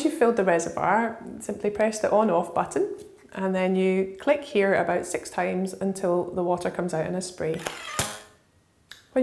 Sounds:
Speech

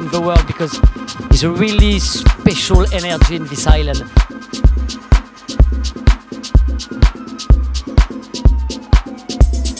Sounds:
Speech, Music, Rhythm and blues

